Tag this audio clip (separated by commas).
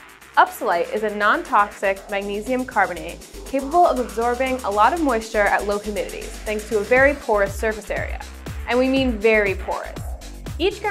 Music, Speech